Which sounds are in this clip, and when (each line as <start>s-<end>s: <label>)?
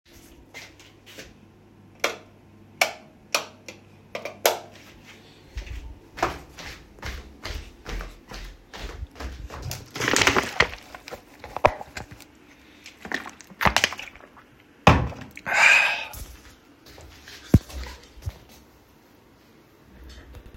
0.5s-1.5s: footsteps
1.9s-4.8s: light switch
5.5s-9.9s: footsteps
16.9s-18.6s: footsteps